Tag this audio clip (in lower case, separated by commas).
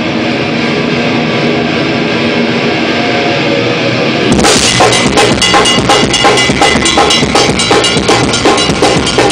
music